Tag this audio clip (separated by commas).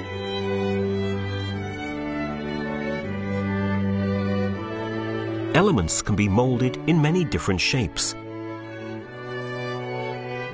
Music, Speech